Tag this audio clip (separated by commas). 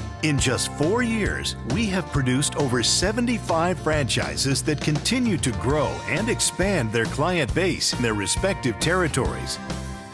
Music, Speech